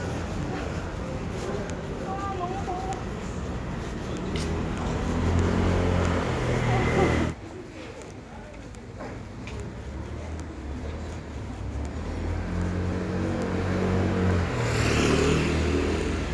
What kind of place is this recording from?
residential area